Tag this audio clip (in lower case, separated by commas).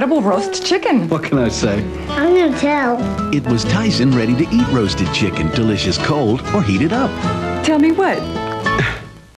speech, music